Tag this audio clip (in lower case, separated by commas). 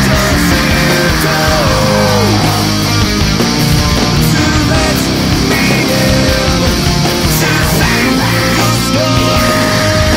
music, heavy metal